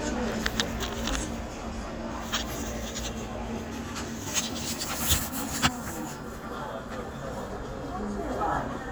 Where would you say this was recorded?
in a crowded indoor space